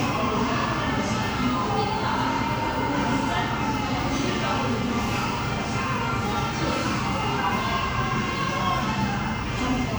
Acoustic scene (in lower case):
crowded indoor space